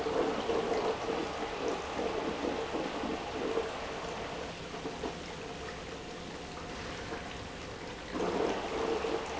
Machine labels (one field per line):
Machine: pump